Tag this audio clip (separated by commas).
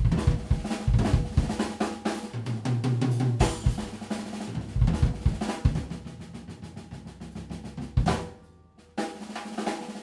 Cymbal, playing cymbal, Musical instrument, Music, Drum roll, Progressive rock